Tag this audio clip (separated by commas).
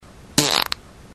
Fart